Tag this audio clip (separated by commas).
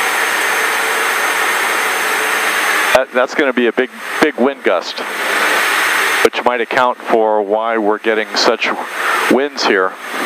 Speech